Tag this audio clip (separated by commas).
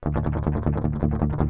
Musical instrument, Plucked string instrument, Guitar, Strum, Music